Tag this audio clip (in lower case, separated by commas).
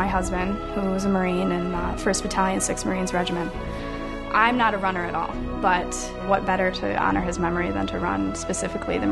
speech, music